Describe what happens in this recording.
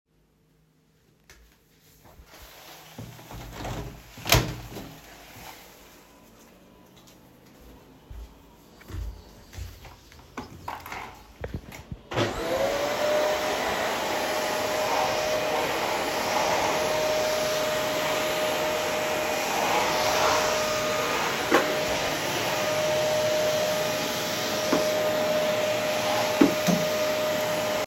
I removed the curtains, opened the window and started vaccuming